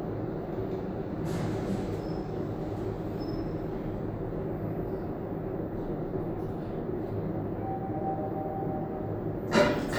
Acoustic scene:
elevator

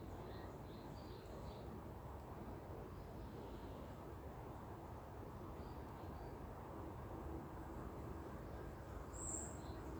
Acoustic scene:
park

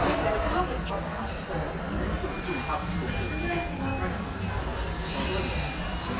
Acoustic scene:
cafe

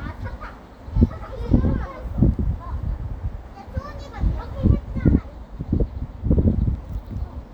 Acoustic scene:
residential area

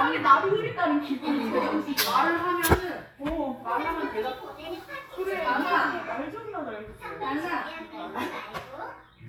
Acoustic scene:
crowded indoor space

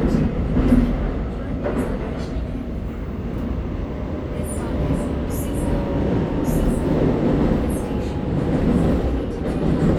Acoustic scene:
subway train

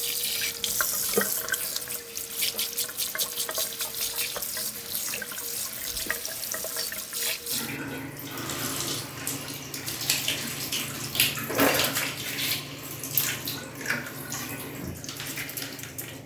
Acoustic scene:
restroom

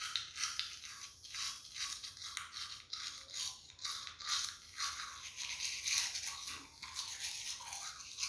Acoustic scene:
restroom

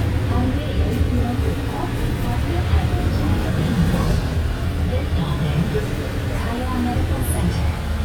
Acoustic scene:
bus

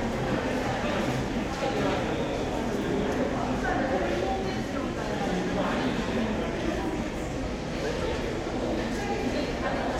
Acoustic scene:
crowded indoor space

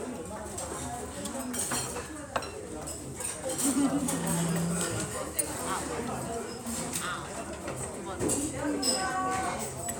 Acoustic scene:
restaurant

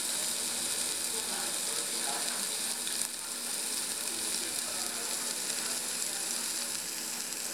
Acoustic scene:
restaurant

